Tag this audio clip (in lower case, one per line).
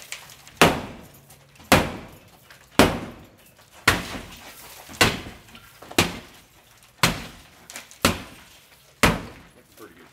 glass